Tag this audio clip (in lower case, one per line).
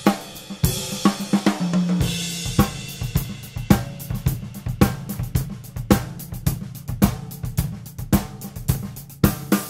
playing cymbal
hi-hat
cymbal